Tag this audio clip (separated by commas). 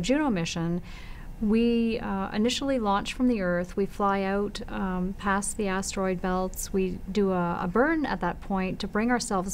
inside a small room, Speech